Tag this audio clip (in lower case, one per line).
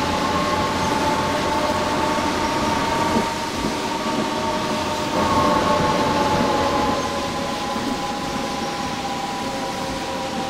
vehicle